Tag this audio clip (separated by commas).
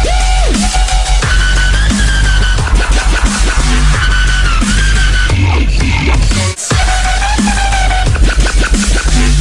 Dubstep, Music